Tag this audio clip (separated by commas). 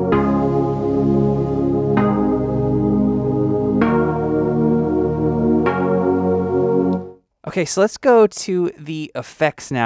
Synthesizer, Music, Speech